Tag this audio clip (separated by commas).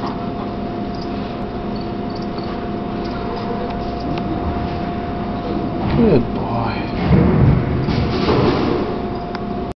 Speech